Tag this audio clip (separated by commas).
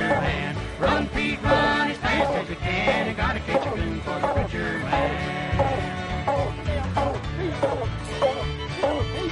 Music